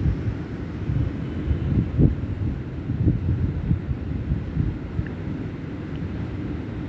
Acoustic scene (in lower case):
residential area